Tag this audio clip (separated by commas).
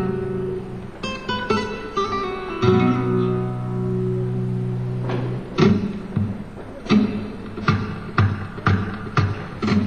Musical instrument, Guitar, Music, Plucked string instrument, Acoustic guitar